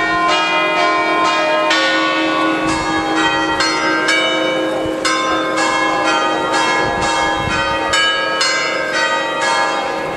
Church bells ringing